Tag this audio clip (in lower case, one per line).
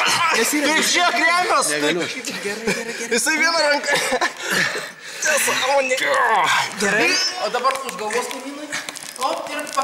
speech